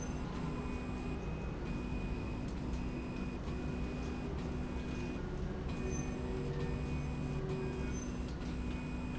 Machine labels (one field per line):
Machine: slide rail